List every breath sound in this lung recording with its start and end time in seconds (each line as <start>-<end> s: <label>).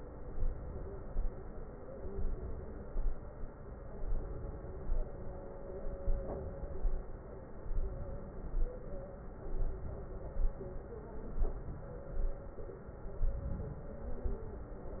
0.34-1.16 s: inhalation
2.11-2.92 s: inhalation
4.08-4.90 s: inhalation
6.00-6.82 s: inhalation
7.73-8.55 s: inhalation
9.63-10.45 s: inhalation
11.44-12.25 s: inhalation
13.30-14.12 s: inhalation